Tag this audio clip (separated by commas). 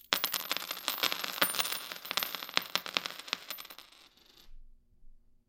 Domestic sounds, Coin (dropping)